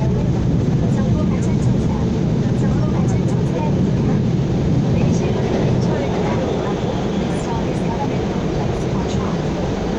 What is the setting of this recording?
subway train